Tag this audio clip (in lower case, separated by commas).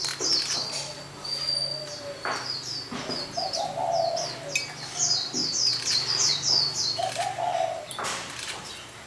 speech